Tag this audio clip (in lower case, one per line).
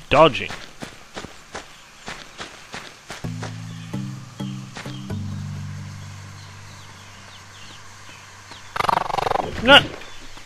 speech